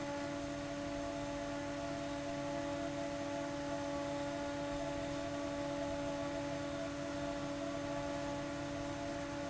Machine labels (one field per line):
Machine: fan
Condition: abnormal